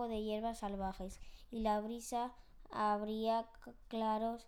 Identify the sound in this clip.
speech